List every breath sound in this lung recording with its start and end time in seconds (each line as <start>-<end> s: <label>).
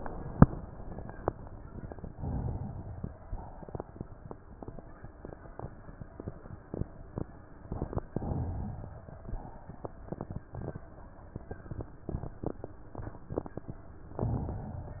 2.07-3.09 s: inhalation
3.32-4.06 s: exhalation
8.16-9.11 s: inhalation
9.18-9.99 s: exhalation
14.19-15.00 s: inhalation